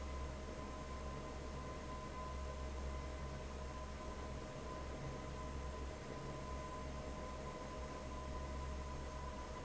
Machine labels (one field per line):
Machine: fan